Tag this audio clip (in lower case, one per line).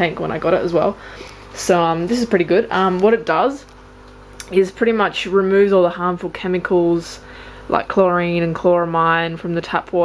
speech